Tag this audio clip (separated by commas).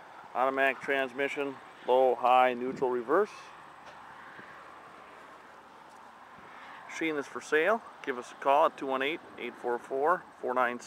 Speech